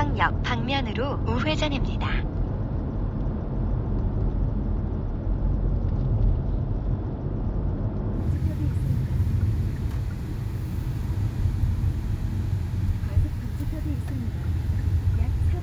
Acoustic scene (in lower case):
car